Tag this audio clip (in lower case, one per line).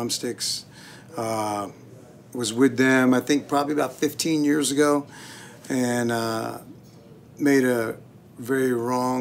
speech